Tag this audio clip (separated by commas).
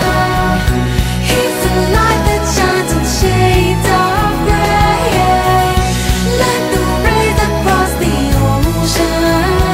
Music